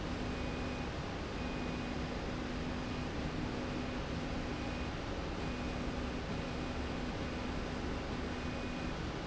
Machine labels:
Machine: slide rail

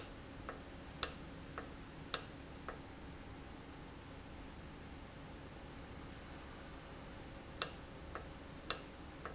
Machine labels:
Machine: valve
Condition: normal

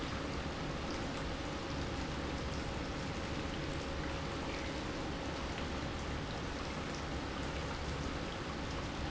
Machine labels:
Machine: pump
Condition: normal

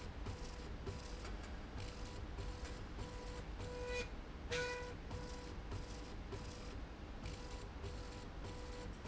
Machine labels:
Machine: slide rail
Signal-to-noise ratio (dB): 6 dB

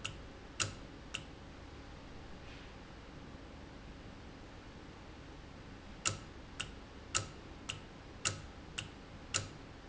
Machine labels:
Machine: valve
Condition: normal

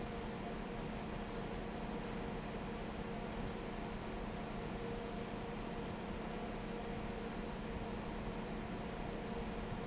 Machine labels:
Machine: fan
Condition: normal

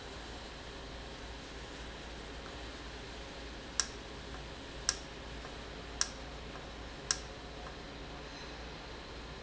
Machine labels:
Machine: valve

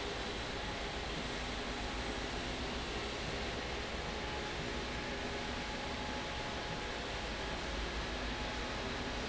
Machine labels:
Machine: slide rail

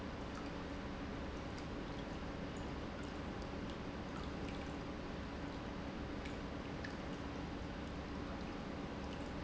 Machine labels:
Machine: pump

